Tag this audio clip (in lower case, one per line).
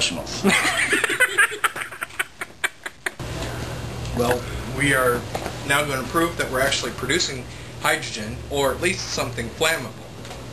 speech